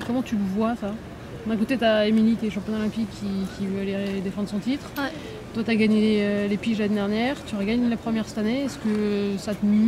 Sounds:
speech

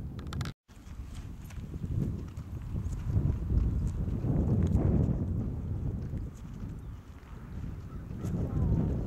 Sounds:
horse clip-clop, horse, clip-clop

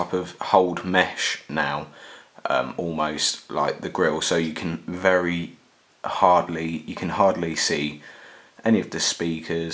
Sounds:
speech

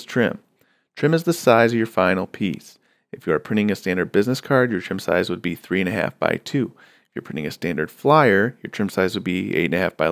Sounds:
speech

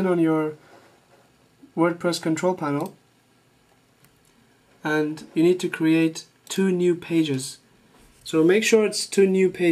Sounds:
speech

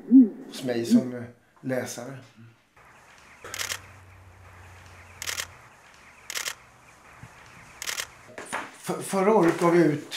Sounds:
speech, man speaking

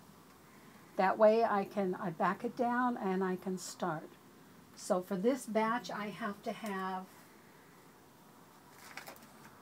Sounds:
speech

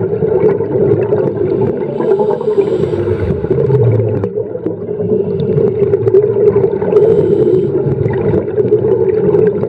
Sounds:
scuba diving

